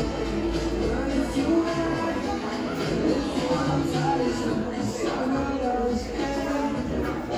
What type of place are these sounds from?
cafe